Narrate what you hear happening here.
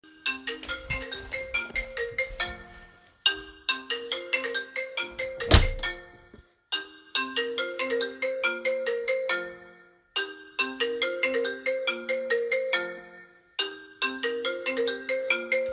The phone was ringing while I walked toward it. During the scene footsteps and door opening or closing are also audible. Some events overlap briefly.